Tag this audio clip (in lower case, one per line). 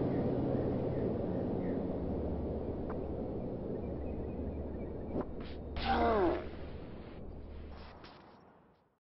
car passing by